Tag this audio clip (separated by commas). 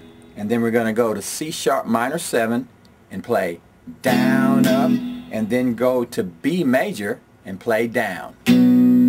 Plucked string instrument, Musical instrument, Electric guitar, Tapping (guitar technique), Guitar